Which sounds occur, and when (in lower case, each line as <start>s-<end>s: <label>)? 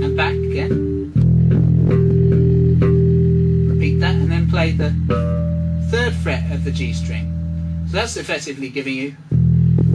0.0s-0.8s: man speaking
0.0s-9.9s: music
3.8s-4.9s: man speaking
5.9s-7.3s: man speaking
7.9s-9.1s: man speaking